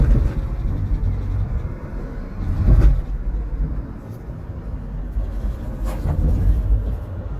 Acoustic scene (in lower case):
car